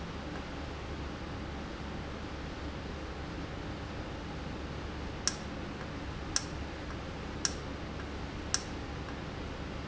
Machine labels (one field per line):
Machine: valve